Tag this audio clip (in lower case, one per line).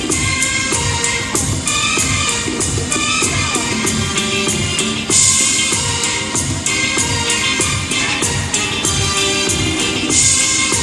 music